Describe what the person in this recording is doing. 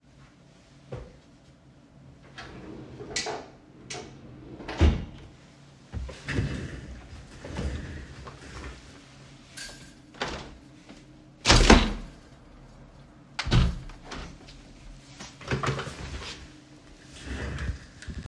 from my chair reached to the drawer opened and got a pen, after this stood up and opened the window